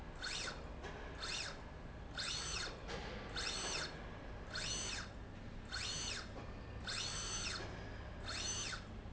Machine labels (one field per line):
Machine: slide rail